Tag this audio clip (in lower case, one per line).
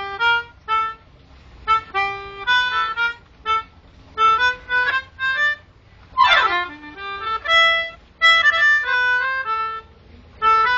music
outside, rural or natural